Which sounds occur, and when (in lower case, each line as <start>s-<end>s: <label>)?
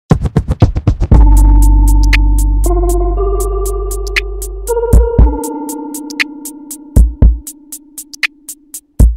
0.1s-9.1s: music